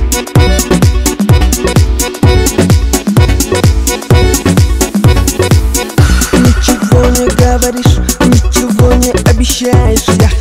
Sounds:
music, theme music

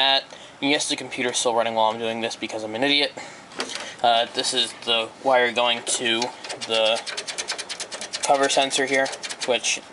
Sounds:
speech

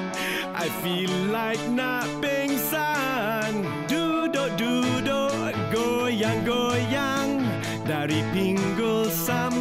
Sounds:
music, blues

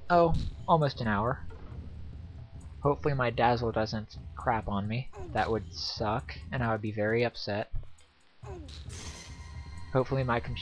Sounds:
speech

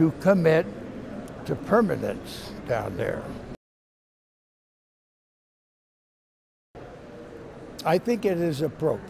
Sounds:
speech

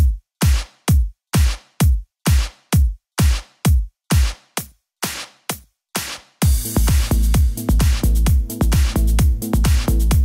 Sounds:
house music, music

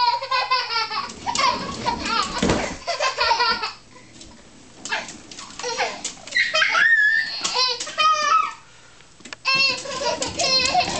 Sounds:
children playing, inside a small room

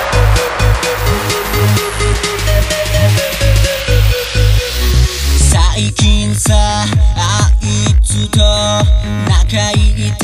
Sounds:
music of asia, electronic dance music, music

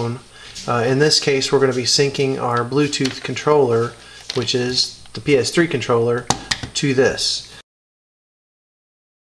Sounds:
silence, speech

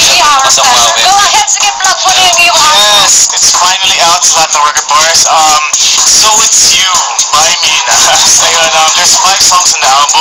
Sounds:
music, radio, speech

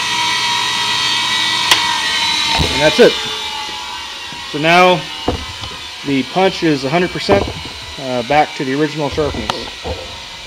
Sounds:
speech

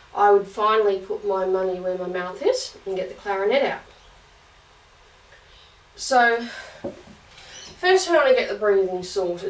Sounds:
speech

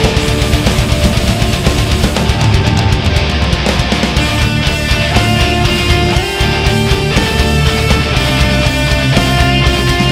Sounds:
electric guitar, guitar, music, plucked string instrument, musical instrument

